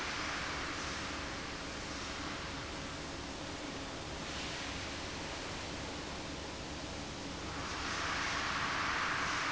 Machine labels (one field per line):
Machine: fan